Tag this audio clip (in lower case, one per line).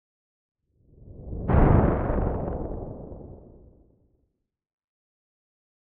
thunderstorm
thunder